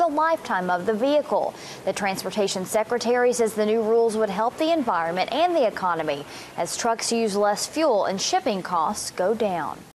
An adult female is speaking, and a motor vehicle engine is running in the background